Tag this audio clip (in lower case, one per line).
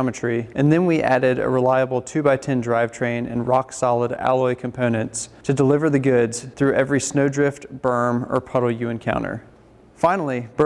speech